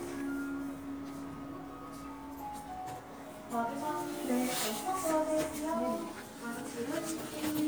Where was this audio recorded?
in a crowded indoor space